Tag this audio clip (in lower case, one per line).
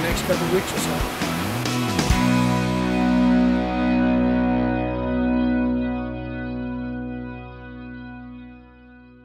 effects unit